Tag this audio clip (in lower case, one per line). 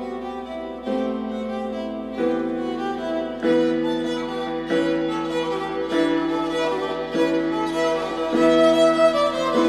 fiddle
music
musical instrument